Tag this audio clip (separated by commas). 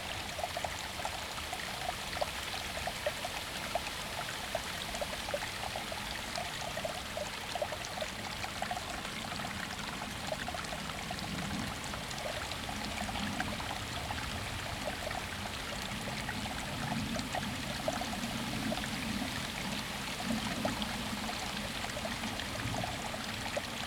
Stream, Water